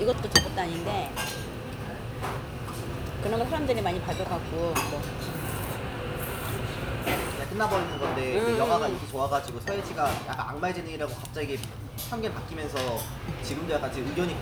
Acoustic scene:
restaurant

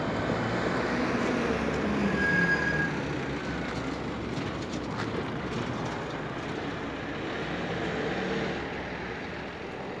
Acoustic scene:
street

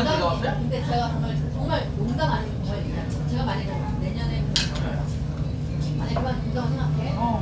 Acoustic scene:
crowded indoor space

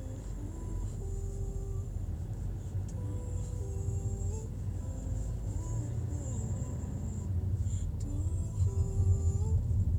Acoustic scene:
car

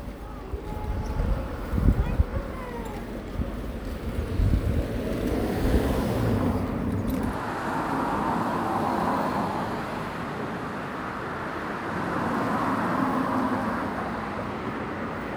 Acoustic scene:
residential area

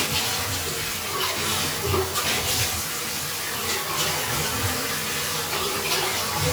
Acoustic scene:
restroom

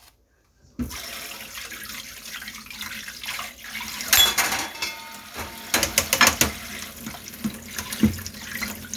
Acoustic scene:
kitchen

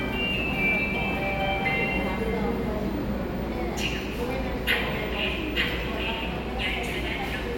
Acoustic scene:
subway station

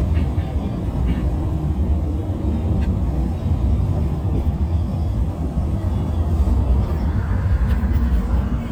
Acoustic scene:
bus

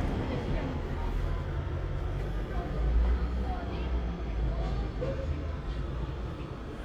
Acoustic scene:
residential area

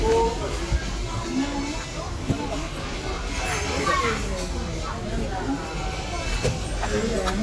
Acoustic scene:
restaurant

